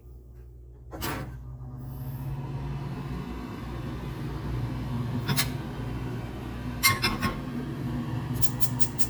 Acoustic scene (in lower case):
kitchen